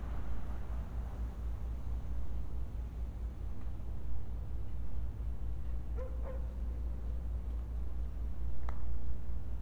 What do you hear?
dog barking or whining